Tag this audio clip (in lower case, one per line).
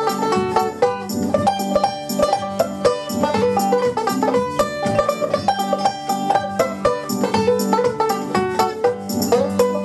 playing banjo
banjo
plucked string instrument
musical instrument
music